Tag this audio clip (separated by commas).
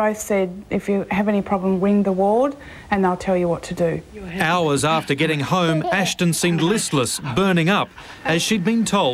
Speech